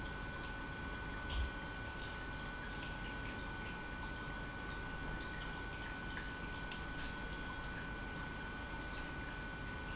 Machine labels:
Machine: pump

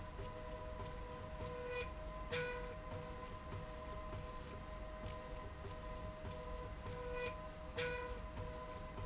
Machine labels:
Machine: slide rail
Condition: normal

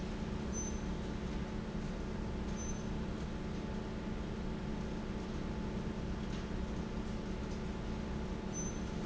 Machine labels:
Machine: fan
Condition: abnormal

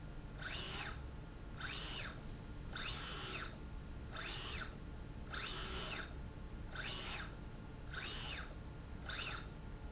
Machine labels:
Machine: slide rail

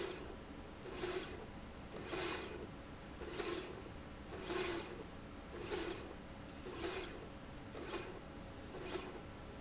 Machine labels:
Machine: slide rail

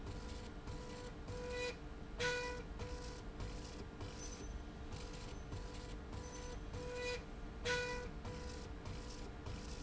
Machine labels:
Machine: slide rail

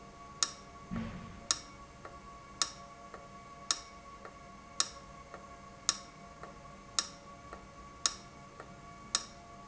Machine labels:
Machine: valve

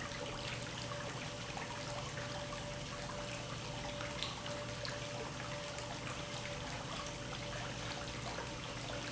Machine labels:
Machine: pump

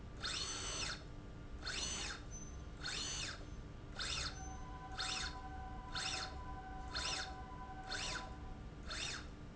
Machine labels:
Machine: slide rail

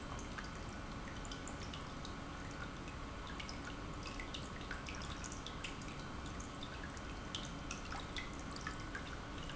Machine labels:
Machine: pump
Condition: normal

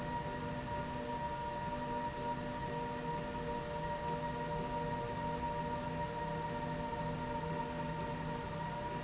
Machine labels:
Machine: slide rail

